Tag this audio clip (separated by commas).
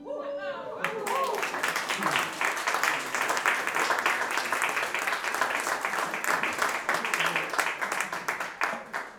Applause, Human group actions